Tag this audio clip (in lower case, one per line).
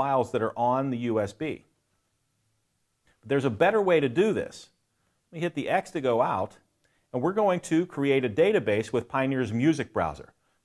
speech